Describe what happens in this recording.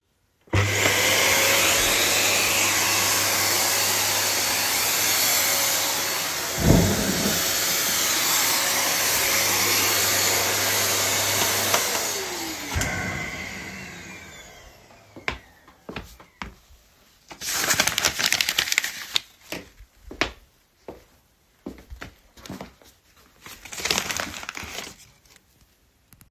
I turned on the vacuum cleaner and cleaned around the living room. While I was cleaning, I pushed a chair out of the way. I turned off the vacuum cleaner and walked over to pick up a paper from the floor. I then crumbled it and kept it on the side.